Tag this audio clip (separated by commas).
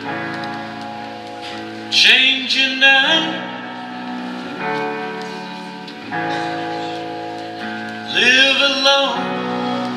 Music